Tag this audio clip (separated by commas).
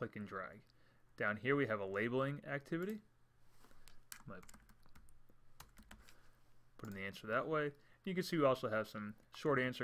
Speech